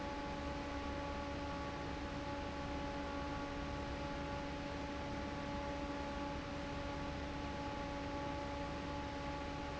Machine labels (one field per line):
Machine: fan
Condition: normal